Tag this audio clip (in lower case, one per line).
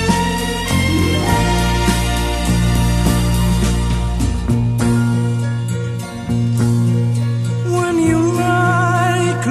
music